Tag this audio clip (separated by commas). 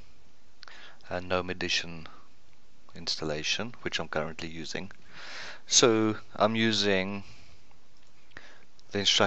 Speech